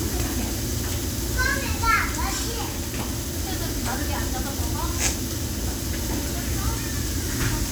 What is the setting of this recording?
restaurant